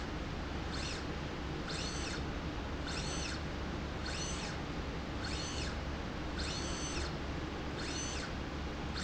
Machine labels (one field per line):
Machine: slide rail